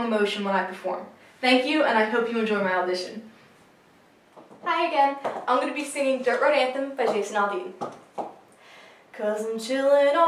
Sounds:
Speech

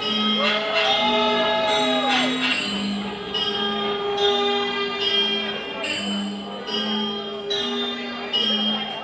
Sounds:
Speech, Music

